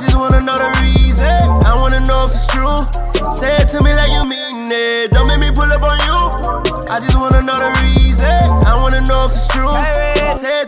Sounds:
music

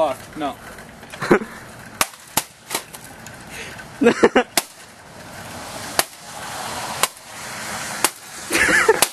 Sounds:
speech

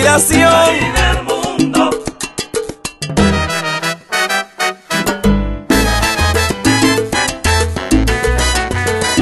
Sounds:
music of latin america
music

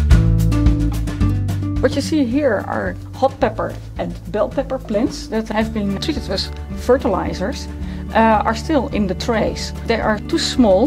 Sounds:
speech
music

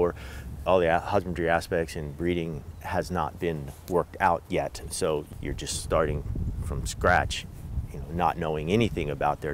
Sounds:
bird wings flapping

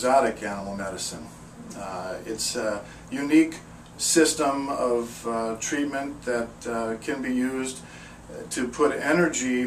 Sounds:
speech

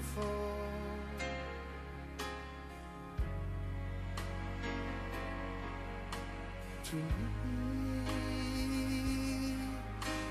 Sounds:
music

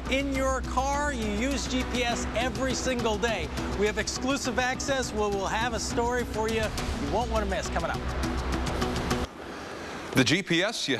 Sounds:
speech
music

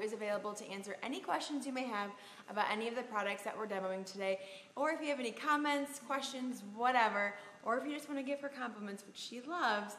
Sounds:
speech

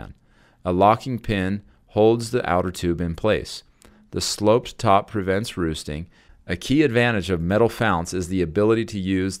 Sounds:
speech

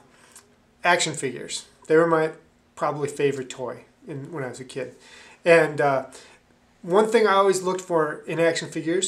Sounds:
speech

